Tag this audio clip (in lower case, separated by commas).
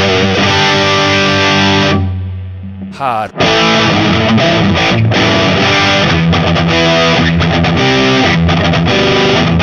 effects unit, speech, inside a small room, musical instrument, guitar, music, distortion, plucked string instrument